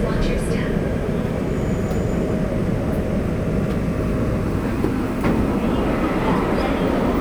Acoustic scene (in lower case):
subway train